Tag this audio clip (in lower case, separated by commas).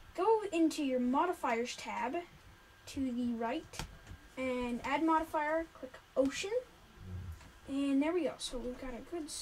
speech